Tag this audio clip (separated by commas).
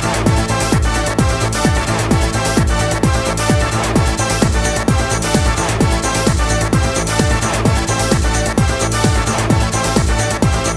Music